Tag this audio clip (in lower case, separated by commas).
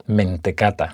speech, man speaking, human voice